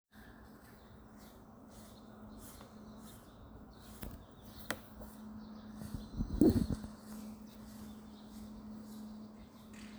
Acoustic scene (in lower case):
residential area